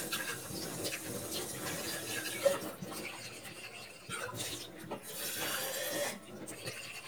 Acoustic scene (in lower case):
kitchen